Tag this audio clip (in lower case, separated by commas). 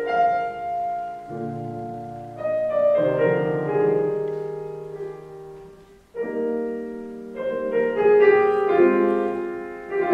musical instrument, music